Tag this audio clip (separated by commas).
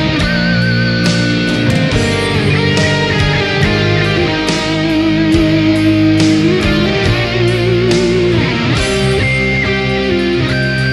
Music, Guitar, Bass guitar, Musical instrument